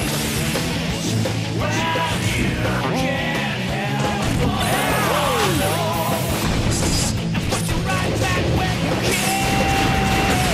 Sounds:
music, smash

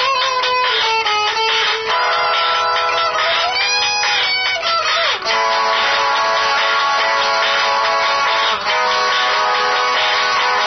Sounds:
music, guitar, musical instrument, strum, plucked string instrument, electric guitar

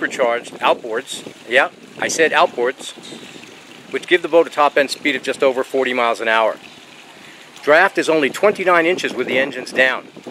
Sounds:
speech

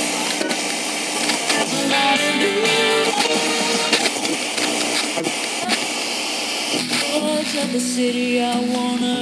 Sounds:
radio

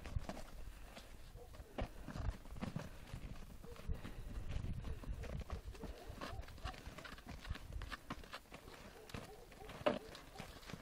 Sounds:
animal

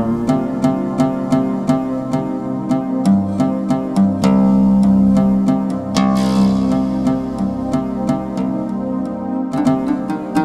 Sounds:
music

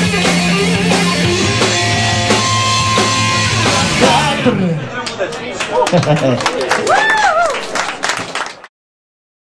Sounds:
plucked string instrument, speech, music, musical instrument, electric guitar, guitar

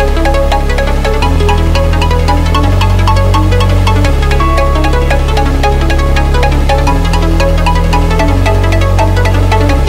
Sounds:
dubstep, electronic music, music

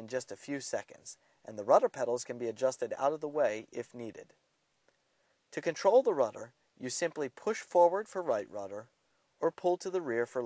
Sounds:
speech

